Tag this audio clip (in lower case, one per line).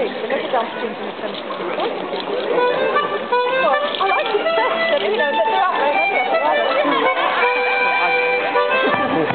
music
speech